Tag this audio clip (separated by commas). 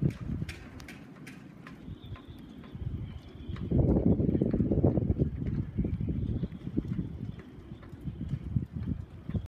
Wind noise (microphone)